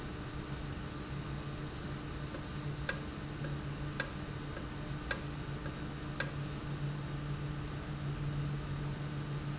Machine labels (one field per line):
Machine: valve